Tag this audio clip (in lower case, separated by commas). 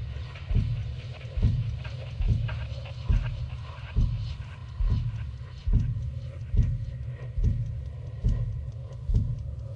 music